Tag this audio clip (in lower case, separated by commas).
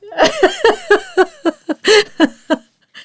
human voice, giggle, laughter